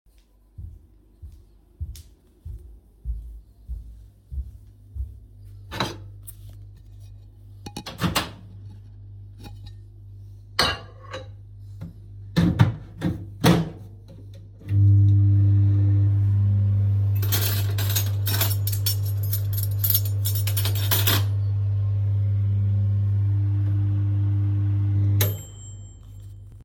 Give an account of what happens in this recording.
I walked towards the kitchen to heat up some food in the microwave,placed the plate and turned it on. Then I grabbed a knife and a fork until the microwave was done.